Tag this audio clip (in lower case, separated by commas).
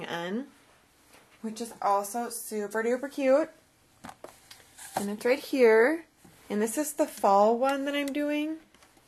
inside a small room, speech